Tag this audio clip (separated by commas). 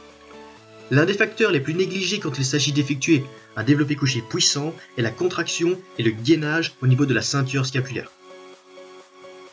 Music, Speech